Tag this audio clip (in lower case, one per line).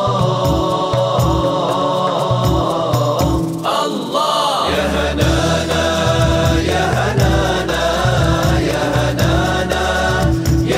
music
chant